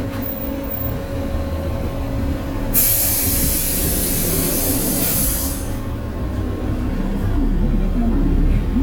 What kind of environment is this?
bus